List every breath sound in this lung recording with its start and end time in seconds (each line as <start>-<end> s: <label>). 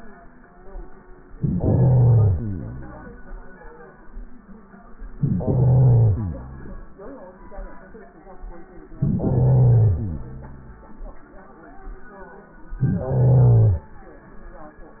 1.26-2.41 s: inhalation
2.36-3.94 s: exhalation
5.16-6.17 s: inhalation
6.17-7.90 s: exhalation
8.97-9.96 s: inhalation
9.94-11.44 s: exhalation
12.76-13.83 s: inhalation